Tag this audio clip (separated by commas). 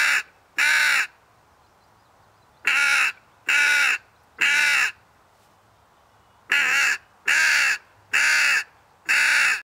Animal, Caw, Crow